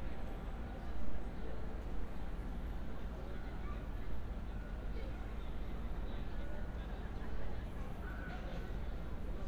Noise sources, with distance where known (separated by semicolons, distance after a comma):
unidentified human voice, far